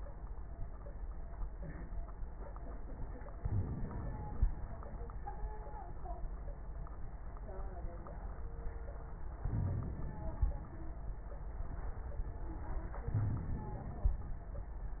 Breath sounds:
3.35-4.85 s: inhalation
3.35-4.85 s: crackles
9.41-10.90 s: inhalation
9.41-10.90 s: crackles
13.10-14.69 s: crackles

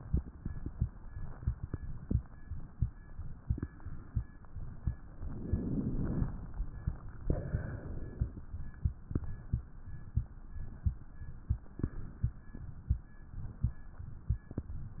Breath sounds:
5.24-6.36 s: inhalation
7.23-8.35 s: exhalation

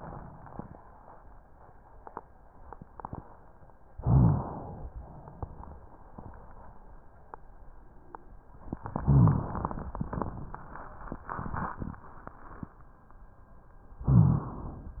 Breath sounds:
3.95-4.90 s: inhalation
4.02-4.47 s: rhonchi
9.01-9.46 s: rhonchi
9.01-9.96 s: inhalation
14.06-14.51 s: rhonchi
14.06-15.00 s: inhalation

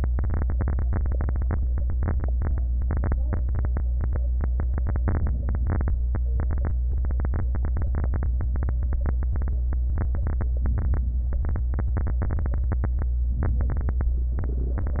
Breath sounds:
5.00-5.97 s: inhalation
5.96-6.94 s: exhalation
13.35-14.39 s: inhalation
14.37-15.00 s: exhalation

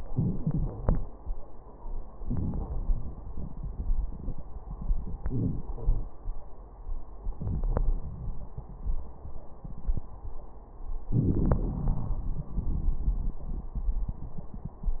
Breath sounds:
2.24-2.68 s: inhalation
2.68-4.42 s: exhalation
5.22-5.68 s: inhalation
5.67-6.13 s: exhalation
7.25-7.62 s: inhalation
7.63-8.48 s: exhalation
11.12-11.80 s: inhalation
11.12-11.80 s: crackles
11.76-15.00 s: exhalation

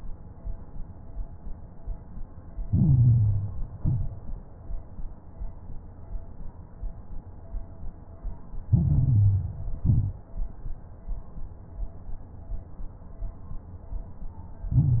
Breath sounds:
2.62-3.72 s: inhalation
2.62-3.72 s: crackles
3.74-4.42 s: exhalation
3.74-4.42 s: crackles
8.70-9.73 s: inhalation
8.70-9.73 s: crackles
9.79-10.35 s: exhalation
9.79-10.35 s: crackles
14.69-15.00 s: inhalation
14.69-15.00 s: crackles

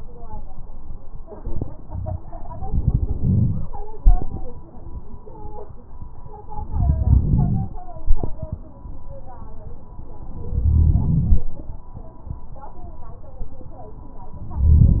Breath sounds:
2.61-3.72 s: inhalation
2.61-3.72 s: crackles
4.01-4.49 s: exhalation
6.57-7.74 s: inhalation
6.57-7.74 s: crackles
7.96-8.69 s: exhalation
10.39-11.51 s: inhalation
10.39-11.51 s: crackles
14.45-15.00 s: inhalation
14.45-15.00 s: crackles

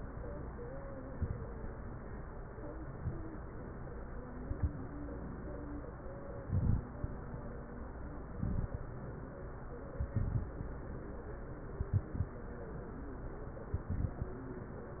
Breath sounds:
0.99-1.49 s: inhalation
2.89-3.35 s: inhalation
4.37-4.76 s: inhalation
6.40-6.93 s: inhalation
8.32-8.85 s: inhalation
9.96-10.75 s: inhalation
11.71-12.37 s: inhalation
13.74-14.40 s: inhalation

